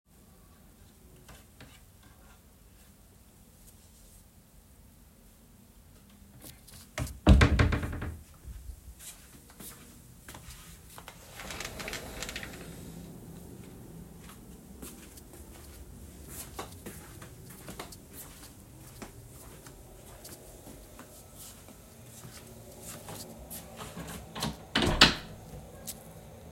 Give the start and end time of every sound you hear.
6.5s-8.4s: wardrobe or drawer
8.6s-10.6s: footsteps
11.1s-13.0s: window
14.6s-23.9s: footsteps
24.3s-25.6s: door

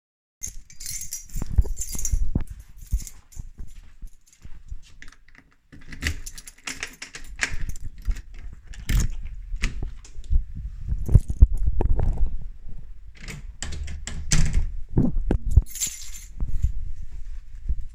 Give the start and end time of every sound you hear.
0.4s-5.2s: keys
1.5s-5.0s: footsteps
5.8s-10.0s: door
6.0s-8.2s: keys
10.2s-12.6s: footsteps
11.0s-12.6s: keys
13.1s-14.9s: door
15.4s-16.4s: keys

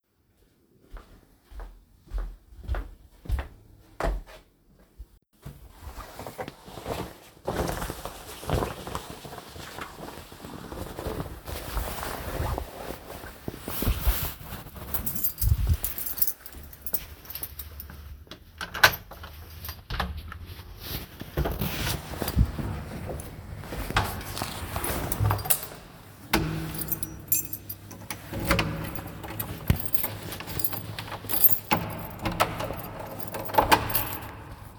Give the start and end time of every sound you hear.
0.7s-4.5s: footsteps
14.8s-17.9s: keys
18.6s-20.3s: door
24.8s-25.8s: keys
26.2s-27.0s: door
26.8s-34.5s: keys
28.3s-34.3s: door

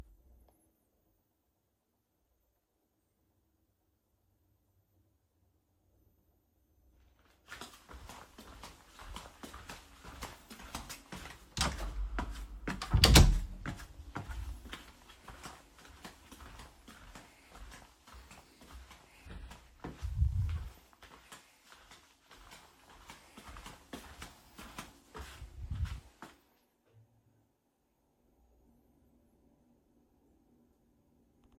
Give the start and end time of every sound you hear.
7.4s-27.6s: footsteps
11.3s-14.4s: door

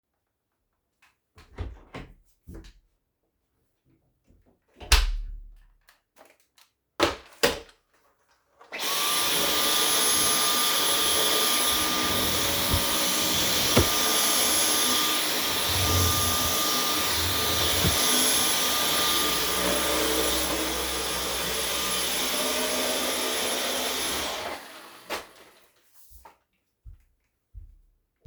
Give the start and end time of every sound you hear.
1.4s-2.7s: door
4.8s-5.5s: door
8.6s-24.7s: vacuum cleaner
11.9s-13.9s: wardrobe or drawer
15.7s-18.0s: wardrobe or drawer

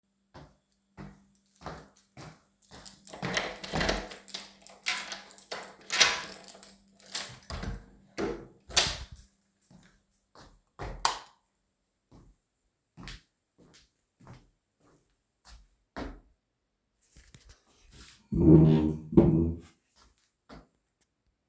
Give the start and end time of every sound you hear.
0.3s-3.0s: footsteps
2.7s-9.3s: keys
6.9s-9.1s: door
10.2s-11.0s: footsteps
10.7s-11.4s: light switch
12.1s-16.5s: footsteps

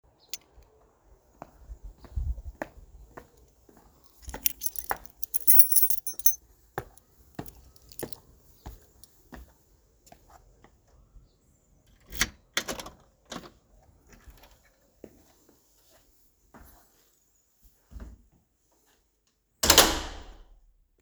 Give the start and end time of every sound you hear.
0.3s-0.5s: keys
1.4s-11.0s: footsteps
4.0s-9.1s: keys
11.9s-15.0s: door
15.0s-18.3s: footsteps
19.6s-20.5s: door

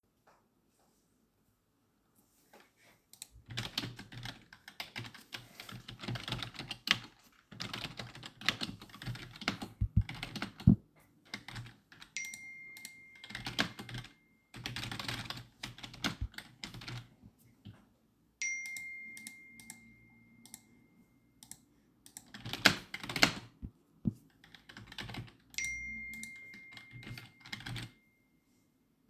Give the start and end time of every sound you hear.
3.4s-17.1s: keyboard typing
12.1s-14.9s: phone ringing
18.3s-21.9s: phone ringing
22.4s-23.5s: keyboard typing
24.7s-25.8s: keyboard typing
25.5s-28.7s: phone ringing
26.4s-28.1s: keyboard typing

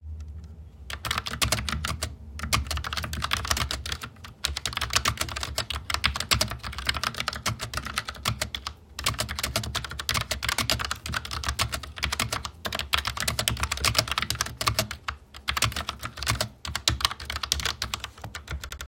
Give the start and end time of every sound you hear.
0.9s-18.9s: keyboard typing

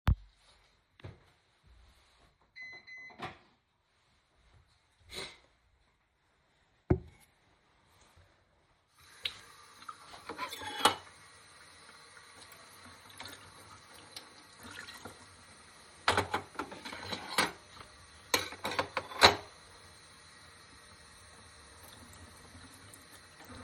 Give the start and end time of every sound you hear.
8.9s-23.6s: running water
10.2s-19.5s: cutlery and dishes

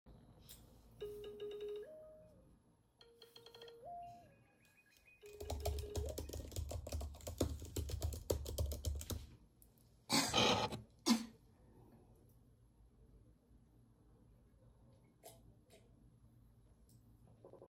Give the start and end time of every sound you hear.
1.0s-6.8s: phone ringing
5.2s-9.3s: keyboard typing

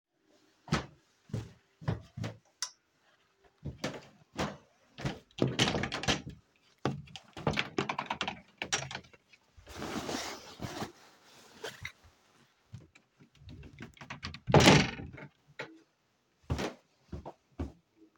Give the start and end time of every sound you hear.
0.6s-3.5s: footsteps
3.6s-9.1s: wardrobe or drawer
14.0s-15.8s: wardrobe or drawer
16.3s-17.9s: footsteps

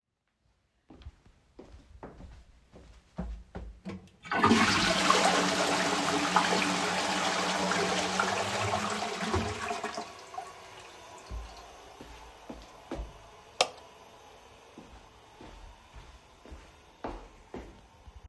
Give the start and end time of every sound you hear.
0.7s-3.8s: footsteps
3.8s-18.3s: toilet flushing
11.3s-13.2s: footsteps
13.6s-13.8s: light switch
14.7s-17.7s: footsteps

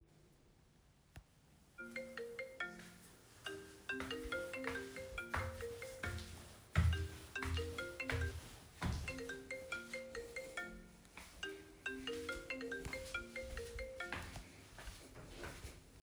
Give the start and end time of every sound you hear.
2.1s-15.9s: phone ringing
4.3s-9.4s: footsteps
11.3s-14.3s: footsteps

